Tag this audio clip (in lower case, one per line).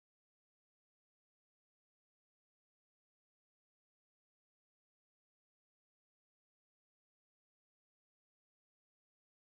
silence